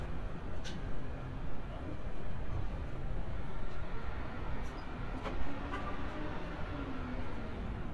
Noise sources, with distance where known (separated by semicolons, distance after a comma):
engine of unclear size, far